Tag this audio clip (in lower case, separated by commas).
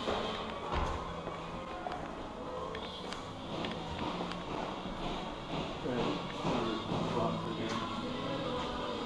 speech, music